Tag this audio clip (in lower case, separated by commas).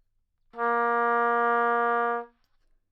musical instrument, music, wind instrument